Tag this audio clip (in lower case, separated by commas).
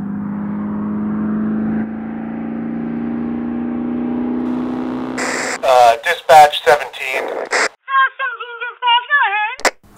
police radio chatter